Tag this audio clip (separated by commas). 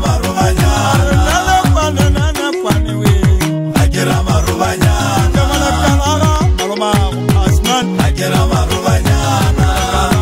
Music, Traditional music